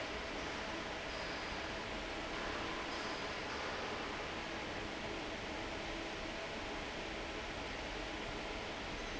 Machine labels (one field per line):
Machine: fan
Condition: normal